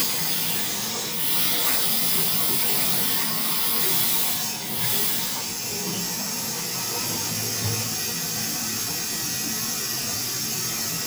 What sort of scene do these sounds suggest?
restroom